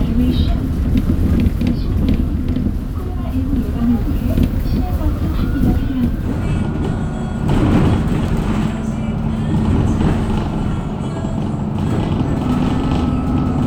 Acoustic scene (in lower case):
bus